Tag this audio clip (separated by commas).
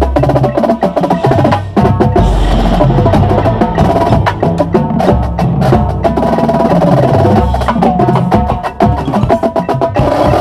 Dance music, Independent music, Music